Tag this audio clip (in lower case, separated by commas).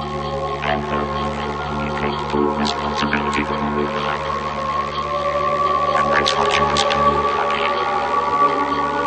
music, electronic music